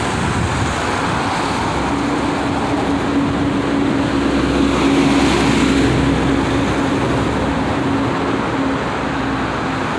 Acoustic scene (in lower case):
street